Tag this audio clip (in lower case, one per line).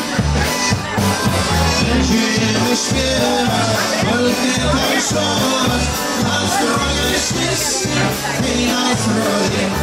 funk
tender music
music